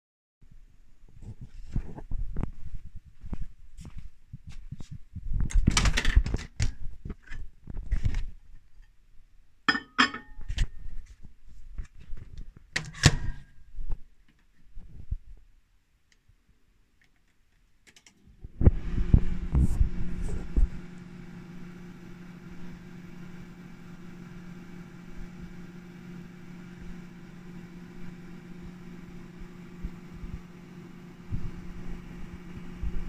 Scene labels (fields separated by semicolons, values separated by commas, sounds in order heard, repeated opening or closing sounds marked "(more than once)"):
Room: kitchen; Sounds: footsteps, microwave, cutlery and dishes